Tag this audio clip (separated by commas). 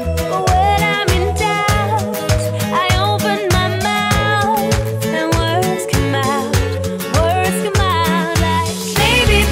Music